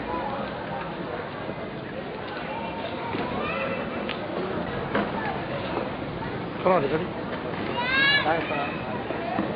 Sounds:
Speech, man speaking

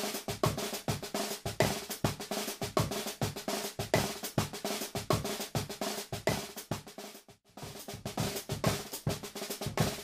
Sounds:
Music

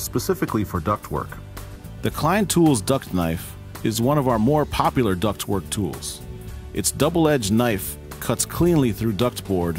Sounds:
Speech, Music

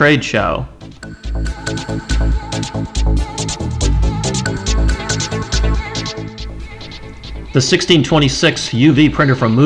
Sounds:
Speech, Music

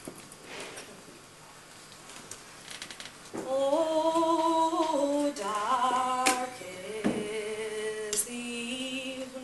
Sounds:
Female singing

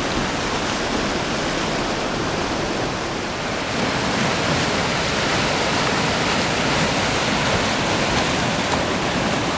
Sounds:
surf, Water vehicle, kayak rowing, Ocean, Rowboat

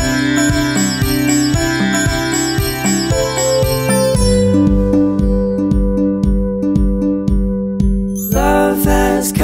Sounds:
Tender music, Independent music, Music

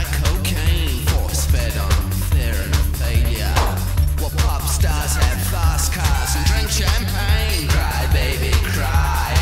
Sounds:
Music

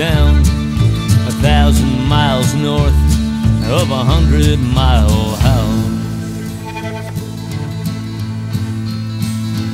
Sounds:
Music

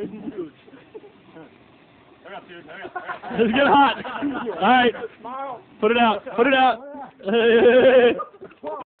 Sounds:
Speech

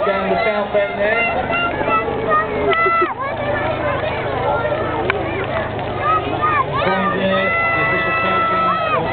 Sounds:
Speech

